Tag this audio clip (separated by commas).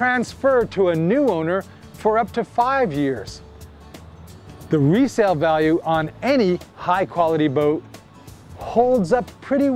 Speech, Music